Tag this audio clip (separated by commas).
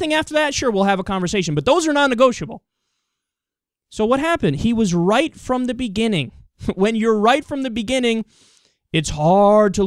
inside a small room, Speech